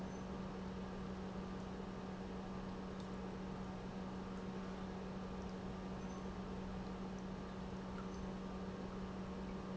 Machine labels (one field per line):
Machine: pump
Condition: normal